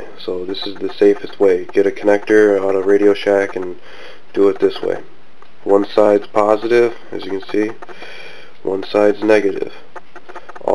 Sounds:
speech

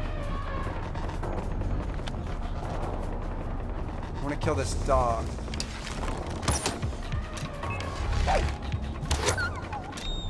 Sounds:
speech, music

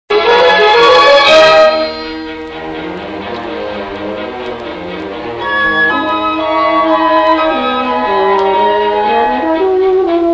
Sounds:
brass instrument

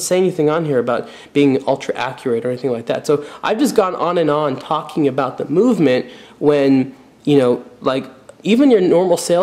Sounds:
speech

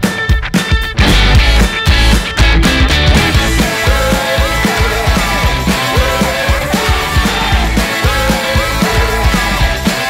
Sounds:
music

